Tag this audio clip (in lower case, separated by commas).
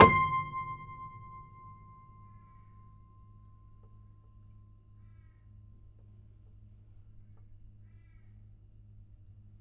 keyboard (musical), musical instrument, piano, music